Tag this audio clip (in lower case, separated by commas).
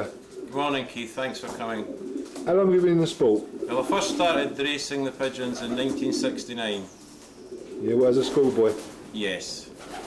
coo, bird, bird vocalization, pigeon